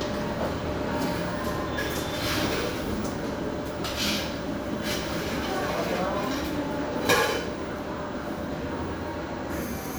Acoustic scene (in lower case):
cafe